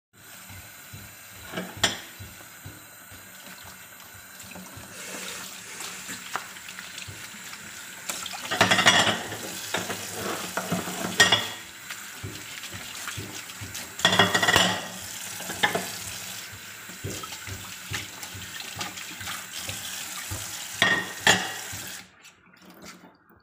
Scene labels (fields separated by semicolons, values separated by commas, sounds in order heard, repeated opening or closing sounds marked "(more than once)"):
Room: kitchen; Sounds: running water, cutlery and dishes